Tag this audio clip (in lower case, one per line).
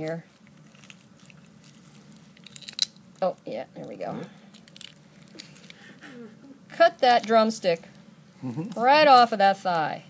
speech
inside a small room